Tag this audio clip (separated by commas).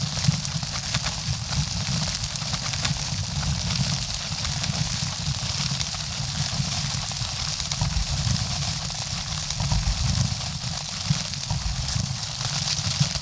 Rain, Water